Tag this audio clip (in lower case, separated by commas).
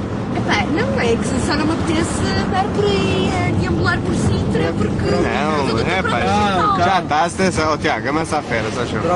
vehicle, speech, car